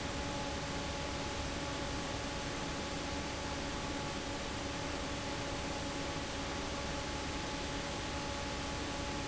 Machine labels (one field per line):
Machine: fan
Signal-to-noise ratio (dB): -6 dB